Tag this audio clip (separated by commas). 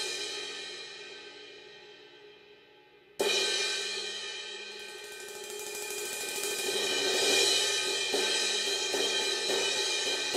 playing cymbal